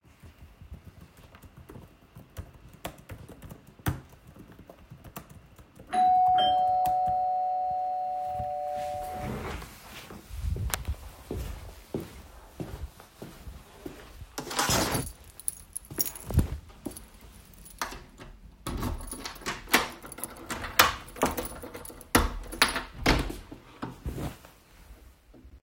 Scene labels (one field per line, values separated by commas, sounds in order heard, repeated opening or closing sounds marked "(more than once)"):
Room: kitchen, hallway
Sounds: keyboard typing, bell ringing, footsteps, keys, door